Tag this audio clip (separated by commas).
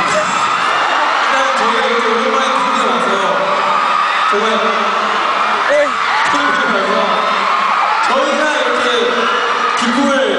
Speech